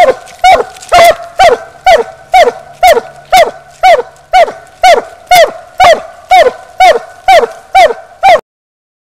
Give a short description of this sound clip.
A dog is barking and whimpering